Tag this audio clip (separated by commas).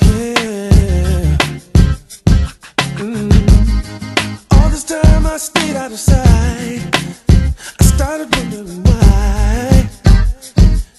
Music